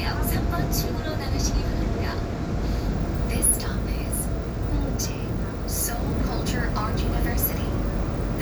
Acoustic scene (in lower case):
subway train